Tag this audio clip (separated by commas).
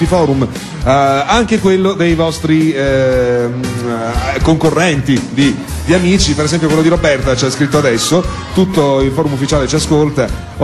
Music, Speech